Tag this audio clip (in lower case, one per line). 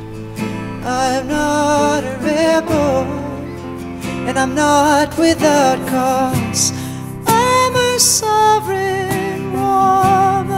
music
speech